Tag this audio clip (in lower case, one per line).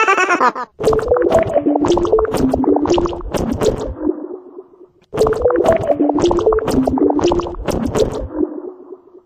speech